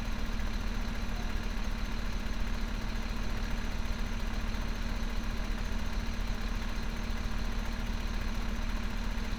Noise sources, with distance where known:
large-sounding engine, near

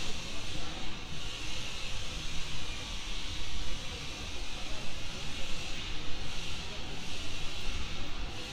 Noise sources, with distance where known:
person or small group talking, far

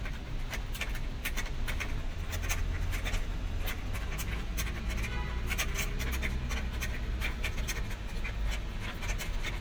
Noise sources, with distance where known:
engine of unclear size; car horn, far

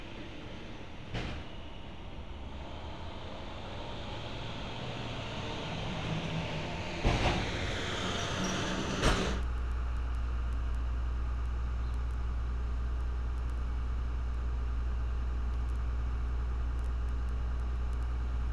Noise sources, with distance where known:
large-sounding engine, near

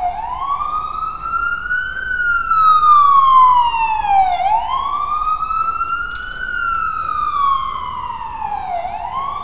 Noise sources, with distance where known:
siren

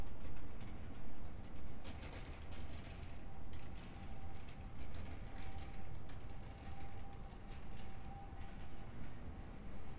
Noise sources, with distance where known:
background noise

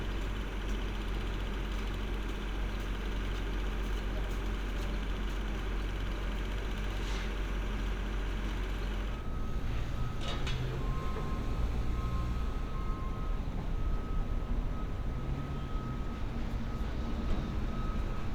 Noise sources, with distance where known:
engine of unclear size

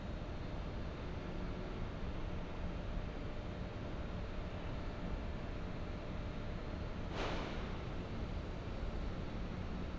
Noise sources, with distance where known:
background noise

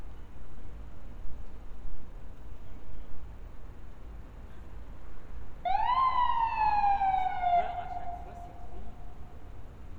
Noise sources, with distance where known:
siren, near

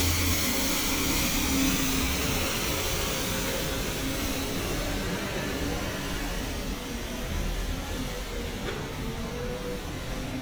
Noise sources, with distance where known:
large-sounding engine, near

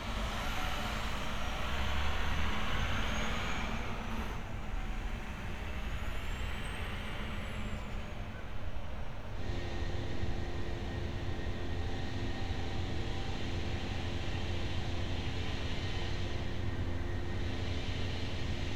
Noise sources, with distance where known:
engine of unclear size

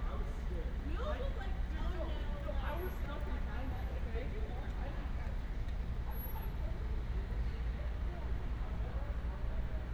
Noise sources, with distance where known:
person or small group shouting, far

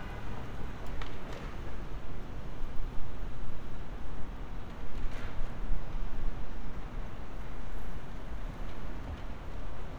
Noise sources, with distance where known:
engine of unclear size

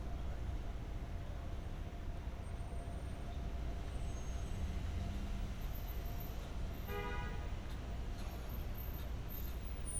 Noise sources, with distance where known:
car horn, near

